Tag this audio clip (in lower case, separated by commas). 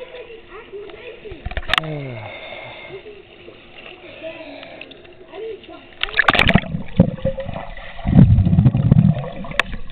splashing water, speech, splatter